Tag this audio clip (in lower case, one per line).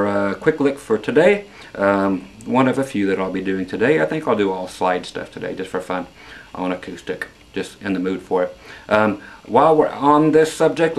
speech